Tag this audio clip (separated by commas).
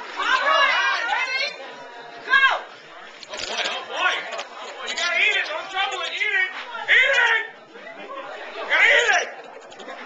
Speech, inside a large room or hall